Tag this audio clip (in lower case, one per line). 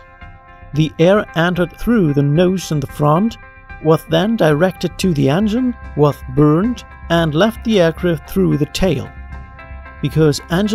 mandolin
music
speech